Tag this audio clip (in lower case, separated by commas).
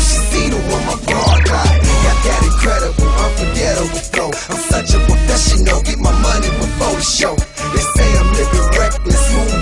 music, pop music, ska, dance music